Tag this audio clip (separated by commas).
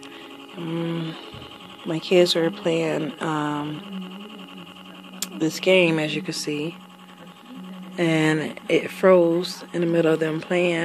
Speech